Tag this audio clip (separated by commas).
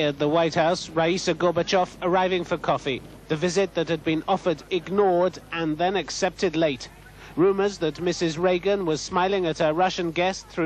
Speech